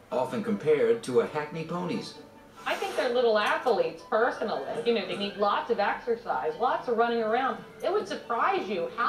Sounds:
Speech, Music

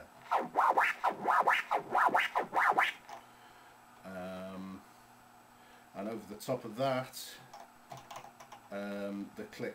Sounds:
Scratching (performance technique), Speech

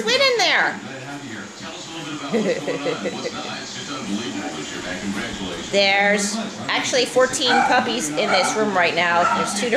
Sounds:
Dog, Animal

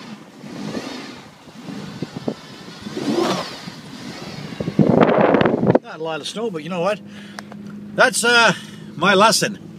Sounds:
Speech, Car, Tire squeal, Vehicle

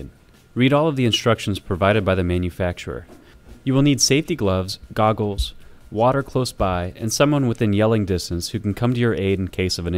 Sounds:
Speech, Music

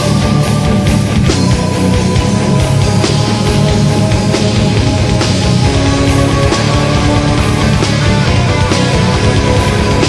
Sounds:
Music

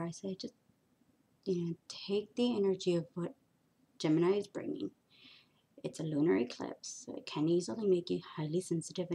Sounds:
inside a small room, Speech

